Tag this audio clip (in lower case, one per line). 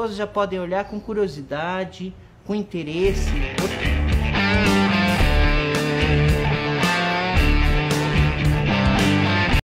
speech
heavy metal
music
musical instrument